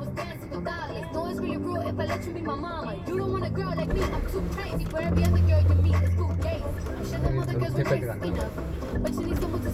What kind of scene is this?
car